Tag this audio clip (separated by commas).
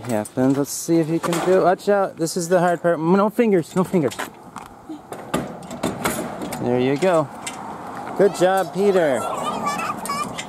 outside, urban or man-made, Speech